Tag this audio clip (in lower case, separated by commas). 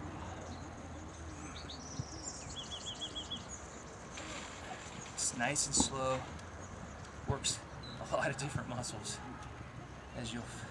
outside, rural or natural, speech